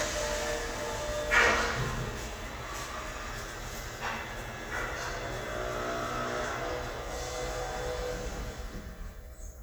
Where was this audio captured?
in an elevator